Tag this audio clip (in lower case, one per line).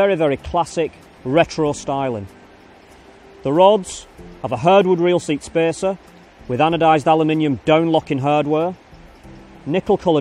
speech